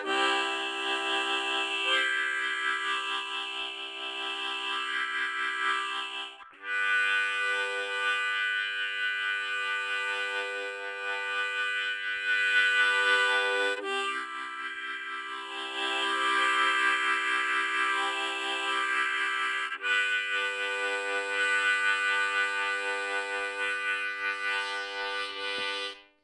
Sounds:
musical instrument, music, harmonica

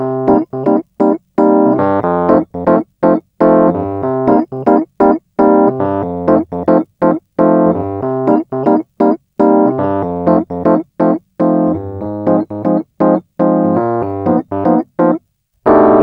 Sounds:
piano, keyboard (musical), music, musical instrument

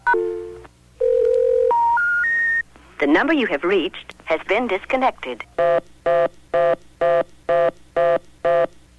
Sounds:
alarm, telephone

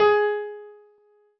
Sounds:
piano, musical instrument, music, keyboard (musical)

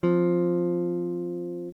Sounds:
guitar, music, electric guitar, musical instrument, plucked string instrument, strum

